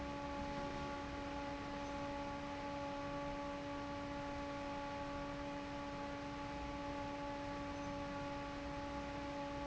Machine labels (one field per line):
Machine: fan